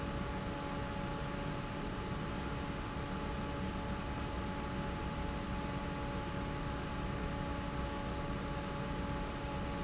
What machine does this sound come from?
fan